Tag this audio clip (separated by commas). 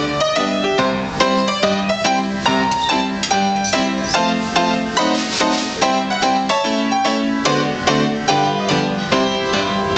Music